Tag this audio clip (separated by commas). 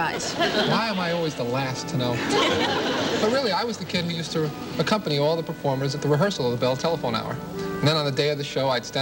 Music, Speech